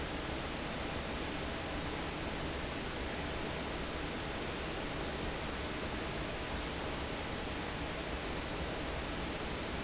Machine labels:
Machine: fan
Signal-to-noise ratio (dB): -6 dB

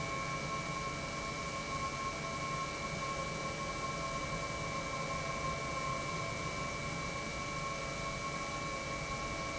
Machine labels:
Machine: pump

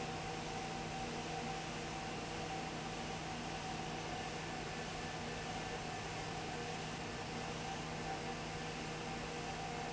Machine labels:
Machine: fan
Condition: abnormal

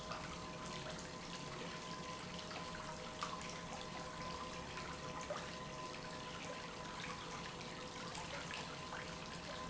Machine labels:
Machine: pump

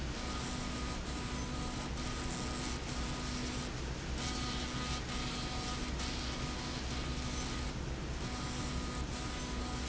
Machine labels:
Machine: slide rail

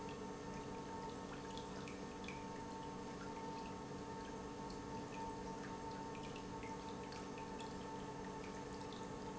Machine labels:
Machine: pump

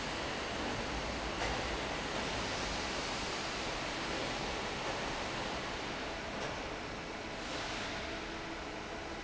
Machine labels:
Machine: fan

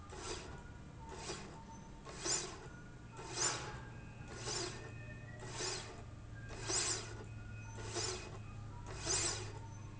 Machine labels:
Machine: slide rail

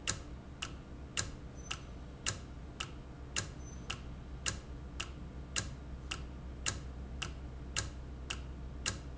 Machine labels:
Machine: valve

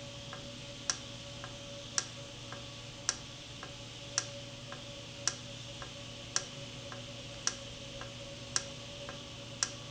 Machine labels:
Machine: valve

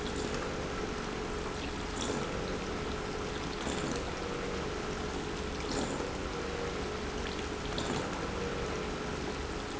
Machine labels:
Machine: pump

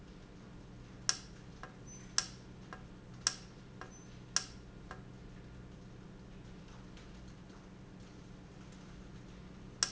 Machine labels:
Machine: valve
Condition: normal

